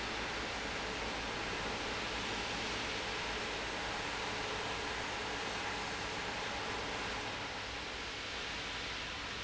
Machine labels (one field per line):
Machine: fan